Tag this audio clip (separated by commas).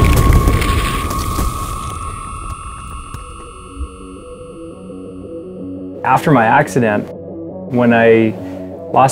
Speech, Music